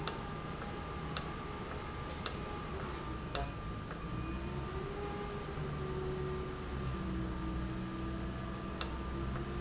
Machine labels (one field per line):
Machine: valve